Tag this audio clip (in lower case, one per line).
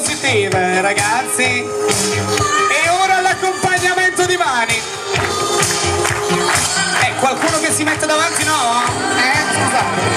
speech
music